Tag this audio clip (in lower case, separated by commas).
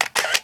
camera, mechanisms